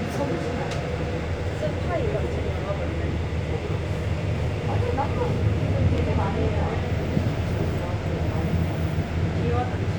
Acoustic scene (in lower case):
subway train